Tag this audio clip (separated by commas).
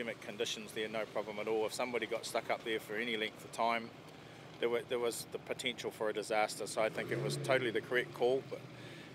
Vehicle, Speech